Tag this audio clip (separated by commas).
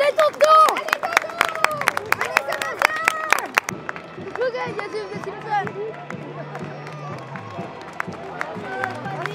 Run, outside, urban or man-made, Crowd, Speech, Music